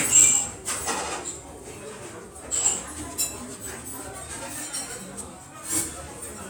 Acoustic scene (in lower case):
restaurant